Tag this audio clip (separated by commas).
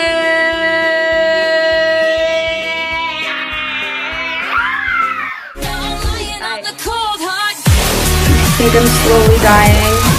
inside a small room, Speech, Music